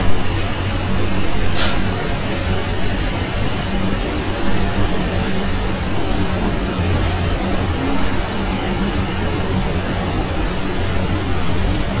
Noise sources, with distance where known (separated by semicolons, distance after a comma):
unidentified impact machinery, near